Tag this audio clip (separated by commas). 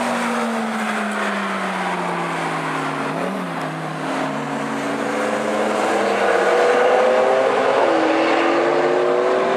Vehicle, Air brake, Car